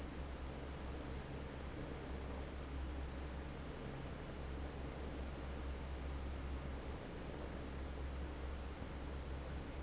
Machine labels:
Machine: fan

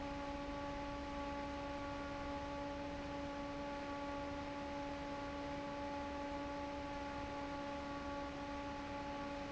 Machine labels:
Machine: fan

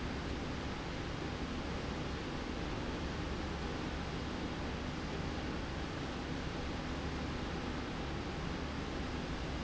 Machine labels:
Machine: slide rail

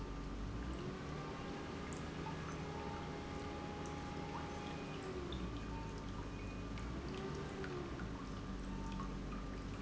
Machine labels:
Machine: pump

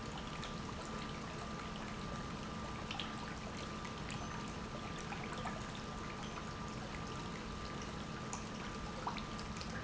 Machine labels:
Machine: pump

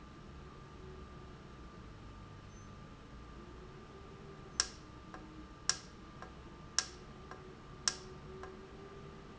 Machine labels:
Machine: valve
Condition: normal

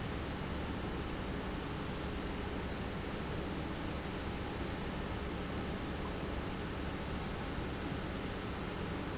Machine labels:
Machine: pump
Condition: normal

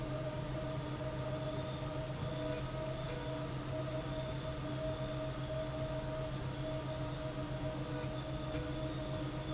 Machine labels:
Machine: slide rail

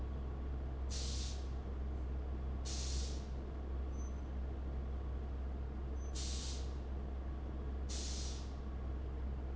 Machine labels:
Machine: fan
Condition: abnormal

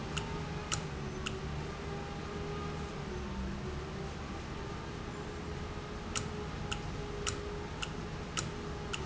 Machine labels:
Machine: valve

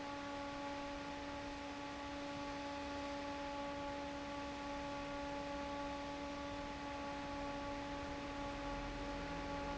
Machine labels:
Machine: fan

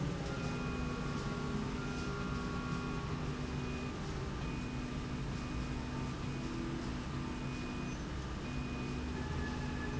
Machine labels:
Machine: slide rail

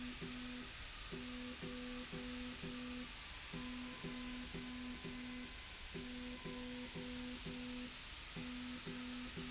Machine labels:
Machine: slide rail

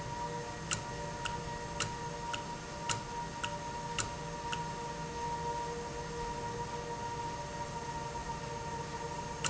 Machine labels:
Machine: valve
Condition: normal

